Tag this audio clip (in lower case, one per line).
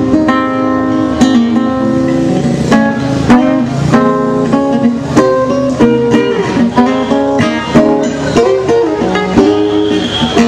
electric guitar
guitar
music
musical instrument